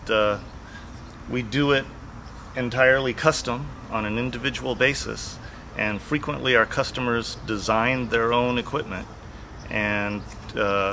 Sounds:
speech

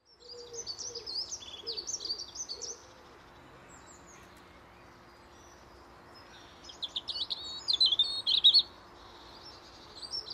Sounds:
bird call, bird, chirp

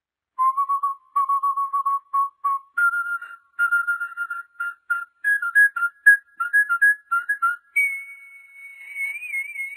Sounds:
people whistling

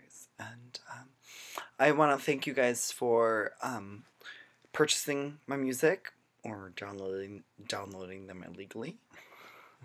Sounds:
speech

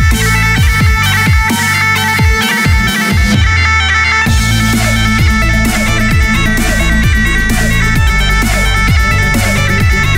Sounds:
playing bagpipes

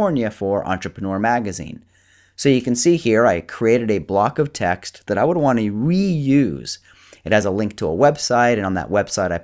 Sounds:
speech

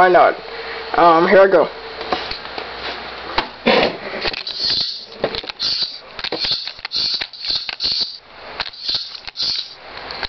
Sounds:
inside a small room, speech

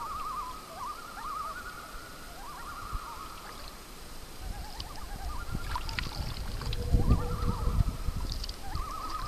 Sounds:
rowboat, animal

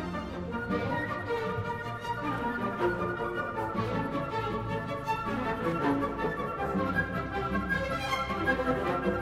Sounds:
music

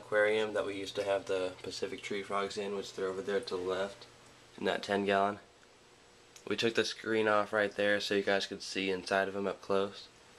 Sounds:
speech

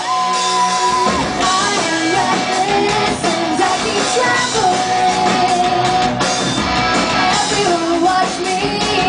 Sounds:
music

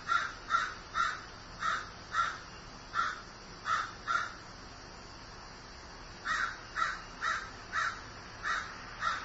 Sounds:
caw, crow

